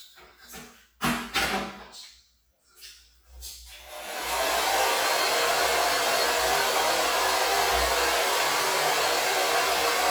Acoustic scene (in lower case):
restroom